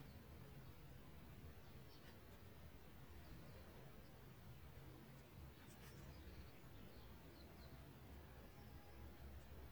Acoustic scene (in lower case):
park